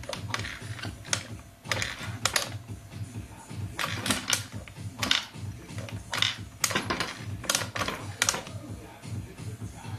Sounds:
music

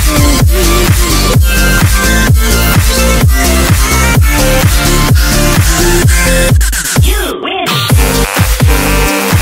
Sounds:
electronic dance music, music

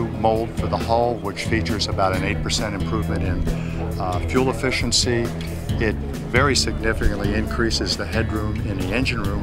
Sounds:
speech, music

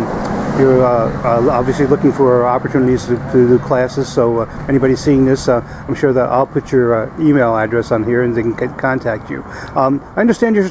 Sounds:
speech, outside, urban or man-made

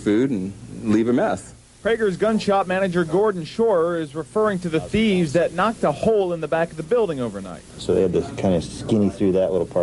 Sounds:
speech

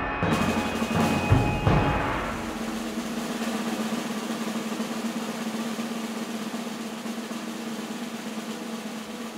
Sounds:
playing snare drum

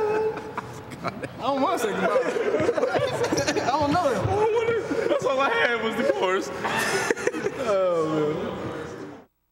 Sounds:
speech

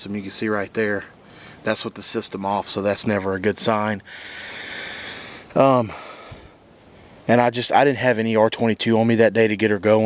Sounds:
speech

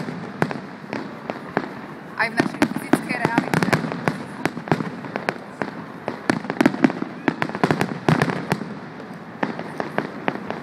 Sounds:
fireworks banging, fireworks

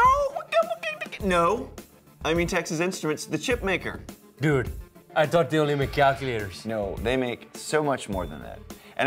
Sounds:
speech, music

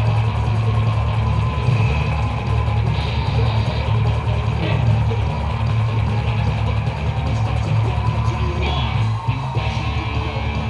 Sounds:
music, musical instrument

